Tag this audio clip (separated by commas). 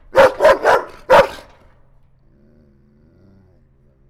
Dog, Animal, Domestic animals, Bark